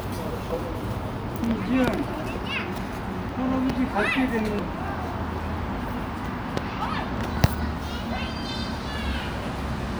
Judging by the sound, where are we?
in a park